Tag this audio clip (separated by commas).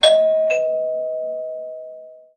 Doorbell, Door, Domestic sounds, Alarm